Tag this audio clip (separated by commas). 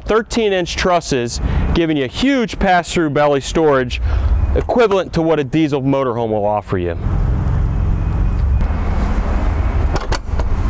Vehicle, Speech, outside, rural or natural